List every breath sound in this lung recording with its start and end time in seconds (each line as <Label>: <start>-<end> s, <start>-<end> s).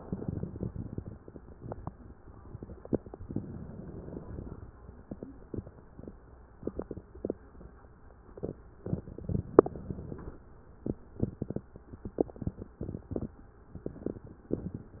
Inhalation: 3.24-4.60 s, 8.85-10.35 s